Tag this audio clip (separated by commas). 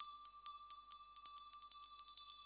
Bell